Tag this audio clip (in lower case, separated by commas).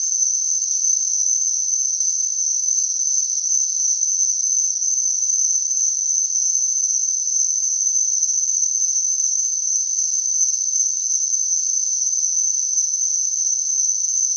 wild animals, cricket, insect, animal